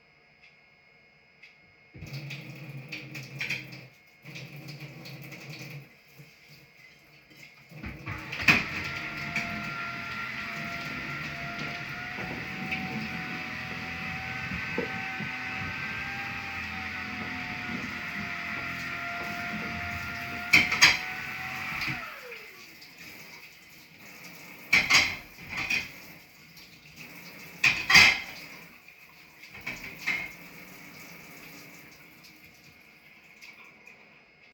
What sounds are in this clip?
running water, cutlery and dishes, vacuum cleaner